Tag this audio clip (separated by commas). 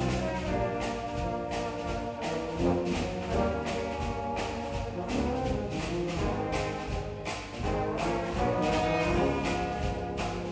Music, Rattle